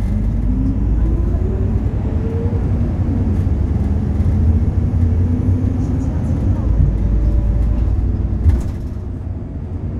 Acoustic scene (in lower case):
bus